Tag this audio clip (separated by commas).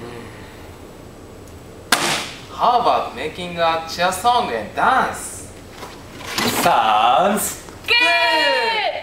Speech, Shout